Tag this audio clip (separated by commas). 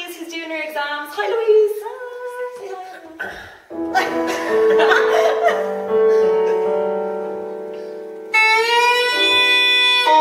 Speech, Music